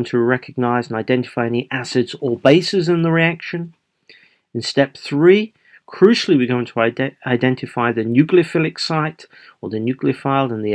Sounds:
Speech

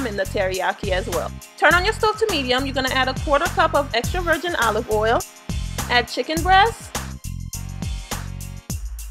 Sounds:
Speech, Music

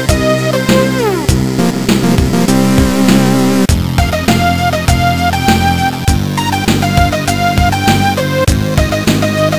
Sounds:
Theme music, Video game music, Music, Soundtrack music

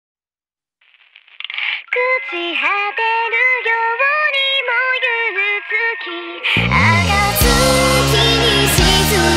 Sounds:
Music

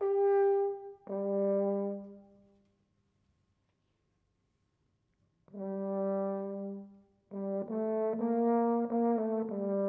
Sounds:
playing french horn

